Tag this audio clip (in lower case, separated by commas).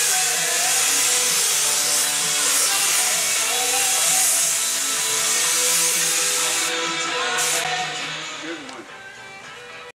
music, speech